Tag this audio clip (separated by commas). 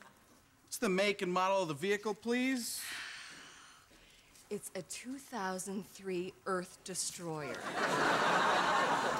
Speech